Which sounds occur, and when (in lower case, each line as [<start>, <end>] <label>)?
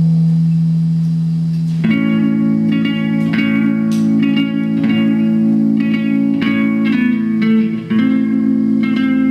[0.00, 9.30] mechanisms
[1.80, 9.30] music